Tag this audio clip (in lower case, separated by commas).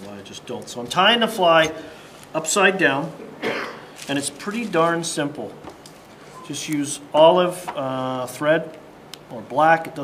speech